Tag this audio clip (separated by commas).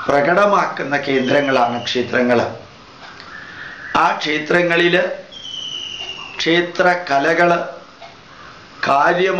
Speech